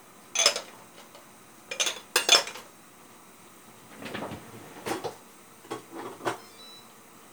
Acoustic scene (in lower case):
kitchen